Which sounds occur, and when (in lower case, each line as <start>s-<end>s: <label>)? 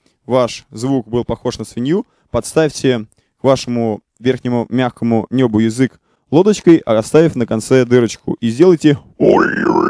0.0s-0.2s: breathing
0.0s-9.8s: background noise
0.2s-2.0s: male speech
2.0s-2.1s: tick
2.0s-2.2s: breathing
2.3s-3.1s: male speech
3.1s-3.3s: breathing
3.4s-4.0s: male speech
4.1s-4.2s: tick
4.2s-6.0s: male speech
6.0s-6.2s: breathing
6.3s-9.1s: male speech
9.2s-9.8s: human sounds